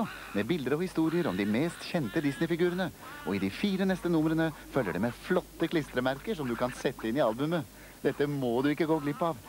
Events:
0.0s-0.3s: speech synthesizer
0.0s-9.4s: background noise
0.3s-1.7s: male speech
1.1s-2.4s: speech synthesizer
1.9s-2.9s: male speech
2.6s-2.9s: speech synthesizer
3.0s-3.3s: speech synthesizer
3.2s-4.5s: male speech
3.6s-4.2s: speech synthesizer
4.7s-7.6s: male speech
8.0s-9.4s: male speech
8.9s-9.3s: speech synthesizer

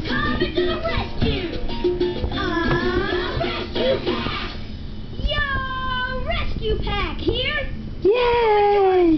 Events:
0.0s-1.6s: child singing
0.0s-4.6s: music
0.0s-9.1s: mechanisms
0.3s-0.4s: generic impact sounds
2.1s-2.3s: generic impact sounds
2.3s-4.6s: child singing
2.7s-2.8s: generic impact sounds
5.2s-7.8s: child speech
8.0s-9.1s: child speech
8.0s-9.1s: female speech

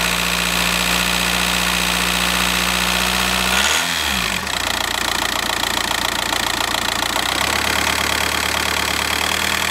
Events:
0.0s-9.7s: medium engine (mid frequency)
3.4s-4.3s: accelerating

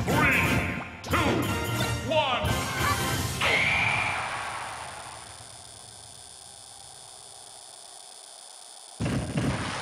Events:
0.0s-3.4s: music
0.0s-9.8s: video game sound
0.0s-0.9s: man speaking
0.7s-0.9s: sound effect
1.0s-1.1s: sound effect
1.1s-1.5s: man speaking
1.7s-1.9s: sound effect
2.0s-2.5s: man speaking
2.8s-3.0s: sound effect
3.4s-9.0s: sound effect
9.0s-9.5s: thud
9.4s-9.8s: surface contact

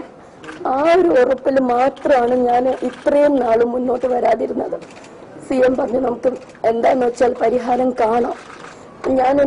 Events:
0.0s-9.4s: background noise
0.4s-0.6s: camera
0.5s-4.9s: female speech
1.2s-1.3s: generic impact sounds
1.9s-2.1s: camera
2.2s-2.3s: camera
2.6s-3.1s: camera
3.9s-4.2s: camera
4.8s-5.0s: camera
5.4s-6.4s: female speech
6.2s-6.5s: camera
6.6s-8.4s: female speech
8.0s-8.8s: camera
8.7s-8.9s: breathing
9.0s-9.4s: female speech

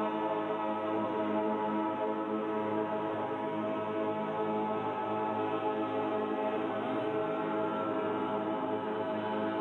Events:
0.0s-9.6s: music

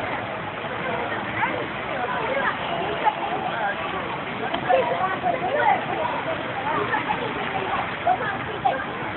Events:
0.0s-0.3s: speech noise
0.0s-9.1s: motor vehicle (road)
0.0s-9.1s: wind
0.6s-1.6s: speech noise
1.9s-9.1s: speech noise
4.5s-4.6s: generic impact sounds

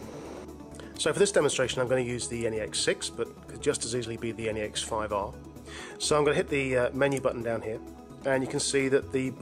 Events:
0.0s-0.4s: background noise
0.0s-9.4s: music
1.0s-3.2s: male speech
3.6s-5.2s: male speech
5.6s-6.0s: breathing
6.0s-7.7s: male speech
7.0s-7.2s: clicking
8.2s-9.4s: male speech

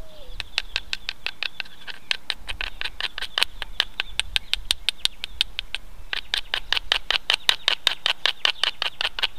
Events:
0.0s-2.1s: tweet
0.0s-9.3s: wind
0.3s-0.4s: generic impact sounds
0.5s-0.6s: generic impact sounds
0.7s-0.8s: generic impact sounds
0.9s-0.9s: generic impact sounds
1.0s-1.1s: generic impact sounds
1.2s-1.3s: generic impact sounds
1.4s-1.4s: generic impact sounds
1.5s-1.6s: generic impact sounds
1.6s-1.9s: rub
1.8s-1.9s: generic impact sounds
2.0s-2.1s: generic impact sounds
2.2s-2.3s: generic impact sounds
2.4s-2.5s: generic impact sounds
2.5s-5.4s: tweet
2.6s-2.7s: generic impact sounds
2.7s-2.8s: generic impact sounds
3.0s-3.0s: generic impact sounds
3.1s-3.2s: generic impact sounds
3.3s-3.4s: generic impact sounds
3.6s-3.6s: generic impact sounds
3.7s-3.8s: generic impact sounds
3.9s-4.0s: generic impact sounds
4.1s-4.2s: generic impact sounds
4.3s-4.3s: generic impact sounds
4.5s-4.5s: generic impact sounds
4.6s-4.7s: generic impact sounds
4.8s-4.9s: generic impact sounds
5.0s-5.1s: generic impact sounds
5.2s-5.2s: generic impact sounds
5.3s-5.4s: generic impact sounds
5.5s-5.5s: generic impact sounds
5.7s-5.8s: generic impact sounds
5.9s-9.3s: tweet
6.1s-6.2s: generic impact sounds
6.3s-6.4s: generic impact sounds
6.5s-6.6s: generic impact sounds
6.7s-6.7s: generic impact sounds
6.9s-6.9s: generic impact sounds
7.1s-7.1s: generic impact sounds
7.3s-7.3s: generic impact sounds
7.5s-7.5s: generic impact sounds
7.6s-7.7s: generic impact sounds
7.8s-7.9s: generic impact sounds
8.0s-8.1s: generic impact sounds
8.2s-8.3s: generic impact sounds
8.4s-8.5s: generic impact sounds
8.6s-8.7s: generic impact sounds
8.8s-8.8s: generic impact sounds
9.0s-9.1s: generic impact sounds
9.1s-9.2s: generic impact sounds
9.3s-9.3s: generic impact sounds

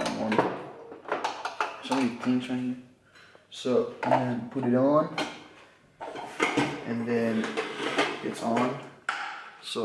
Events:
0.0s-0.1s: generic impact sounds
0.0s-0.4s: male speech
0.0s-9.8s: background noise
0.3s-0.5s: generic impact sounds
0.9s-2.3s: generic impact sounds
1.8s-2.8s: male speech
3.0s-3.5s: breathing
3.1s-3.4s: generic impact sounds
3.7s-5.4s: male speech
4.0s-4.2s: generic impact sounds
4.5s-4.7s: generic impact sounds
5.1s-5.4s: generic impact sounds
5.6s-5.9s: breathing
6.0s-6.7s: generic impact sounds
6.8s-8.8s: male speech
7.4s-7.6s: generic impact sounds
7.8s-8.1s: generic impact sounds
8.3s-8.7s: generic impact sounds
9.0s-9.4s: generic impact sounds
9.6s-9.8s: male speech

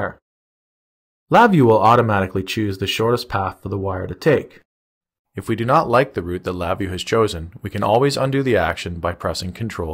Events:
0.0s-0.2s: man speaking
1.3s-4.7s: man speaking
5.4s-9.9s: man speaking

